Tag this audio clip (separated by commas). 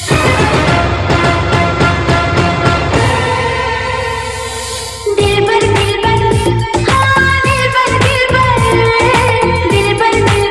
Music, Dance music